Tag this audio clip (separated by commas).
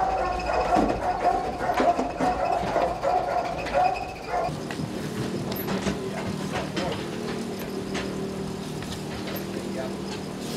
Speech